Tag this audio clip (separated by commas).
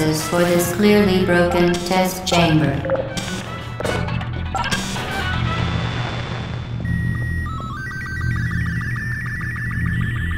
Speech, Music